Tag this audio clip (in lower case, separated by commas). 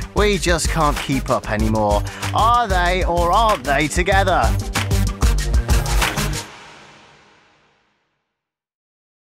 music, speech